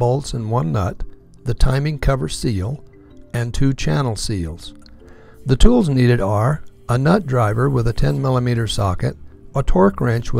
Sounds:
speech

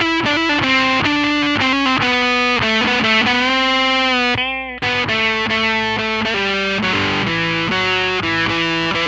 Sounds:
distortion, music, effects unit

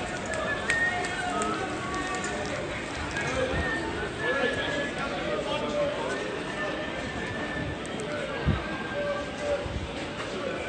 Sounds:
speech

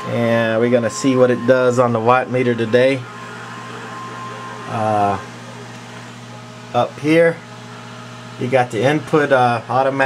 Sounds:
speech

